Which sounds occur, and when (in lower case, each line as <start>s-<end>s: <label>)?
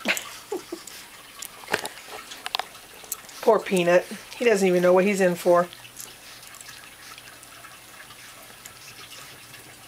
0.0s-0.8s: laughter
0.0s-9.8s: mechanisms
0.0s-9.8s: dribble
1.4s-1.4s: tick
1.6s-3.2s: generic impact sounds
3.4s-4.1s: female speech
4.0s-4.2s: breathing
4.3s-4.5s: generic impact sounds
4.3s-5.7s: female speech
5.7s-5.8s: tick
5.9s-6.1s: generic impact sounds